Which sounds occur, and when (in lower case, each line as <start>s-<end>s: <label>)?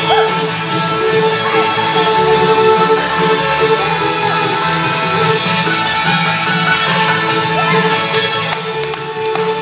0.0s-9.6s: music
7.5s-8.1s: female speech
8.1s-8.3s: clapping
8.4s-8.6s: clapping
8.8s-9.1s: clapping
9.3s-9.5s: clapping